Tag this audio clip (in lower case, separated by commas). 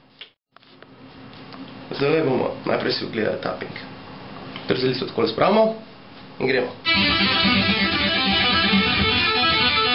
music, guitar, plucked string instrument, speech, strum, musical instrument